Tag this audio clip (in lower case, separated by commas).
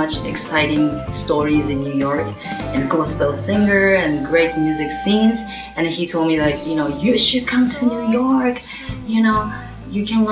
music, speech